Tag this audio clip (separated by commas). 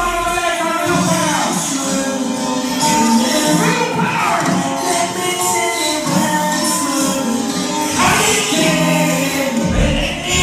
Music